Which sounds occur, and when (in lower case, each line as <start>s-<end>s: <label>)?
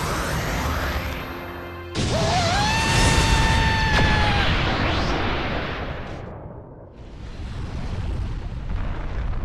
0.0s-9.4s: sound effect
2.1s-4.5s: shout